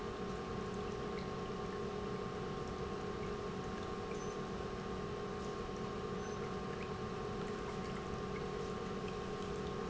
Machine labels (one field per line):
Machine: pump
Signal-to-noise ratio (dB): 0 dB